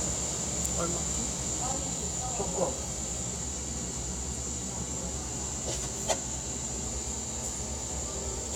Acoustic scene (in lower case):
cafe